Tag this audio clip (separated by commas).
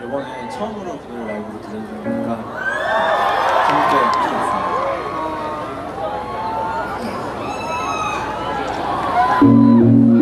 Speech, Music